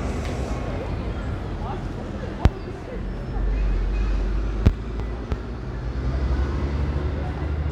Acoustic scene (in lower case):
residential area